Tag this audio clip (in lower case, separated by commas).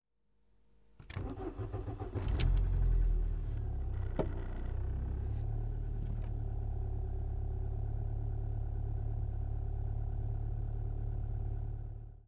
motor vehicle (road), vehicle